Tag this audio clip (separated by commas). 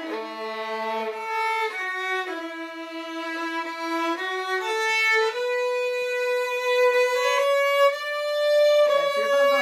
Musical instrument, Violin, Music